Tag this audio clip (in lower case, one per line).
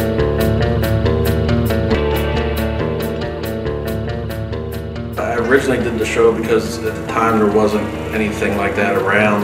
speech
music
vehicle